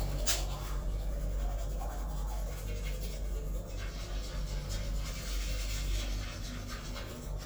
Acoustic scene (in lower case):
restroom